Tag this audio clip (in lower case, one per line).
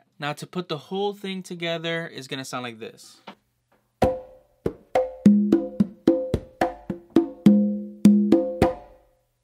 playing congas